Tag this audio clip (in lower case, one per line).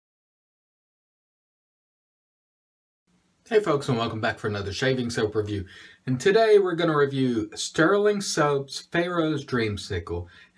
speech